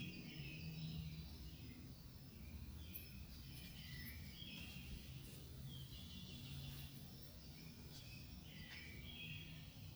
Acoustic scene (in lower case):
park